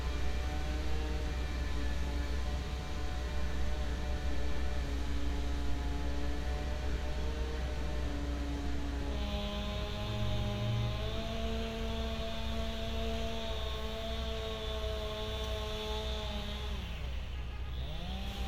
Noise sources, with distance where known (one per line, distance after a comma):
unidentified powered saw